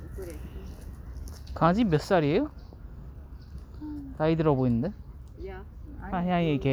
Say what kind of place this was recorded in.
park